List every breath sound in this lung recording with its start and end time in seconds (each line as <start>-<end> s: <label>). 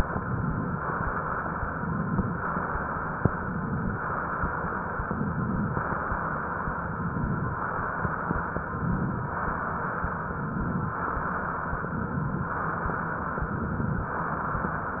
0.02-0.74 s: inhalation
0.74-1.55 s: exhalation
1.63-2.35 s: inhalation
2.35-3.28 s: exhalation
3.32-4.04 s: inhalation
4.06-4.99 s: exhalation
5.04-5.77 s: inhalation
5.75-6.74 s: exhalation
6.86-7.58 s: inhalation
7.58-8.49 s: exhalation
8.62-9.35 s: inhalation
9.37-10.10 s: exhalation
10.27-11.00 s: inhalation
11.02-11.75 s: exhalation
11.80-12.53 s: inhalation
12.53-13.42 s: exhalation
13.45-14.17 s: inhalation
14.20-15.00 s: exhalation